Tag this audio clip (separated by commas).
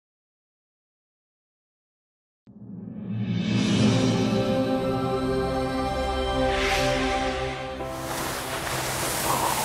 Music, outside, rural or natural, Ocean